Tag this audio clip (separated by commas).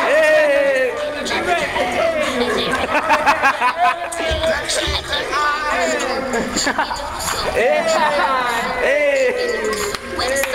Speech, Raindrop, Music